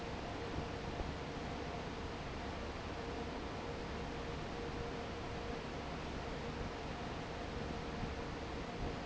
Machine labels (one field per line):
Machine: fan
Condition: normal